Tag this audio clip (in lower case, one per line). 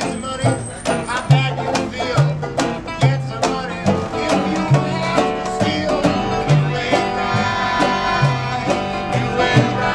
music